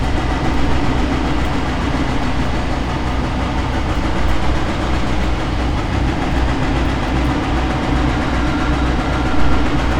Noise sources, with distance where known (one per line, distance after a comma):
hoe ram, near